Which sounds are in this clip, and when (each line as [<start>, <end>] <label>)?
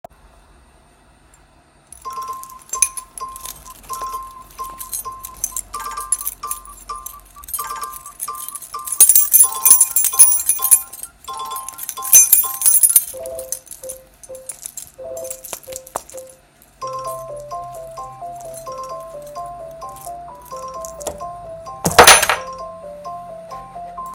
[1.90, 24.15] phone ringing
[1.92, 16.49] keys
[16.59, 21.32] keys
[21.72, 22.38] keys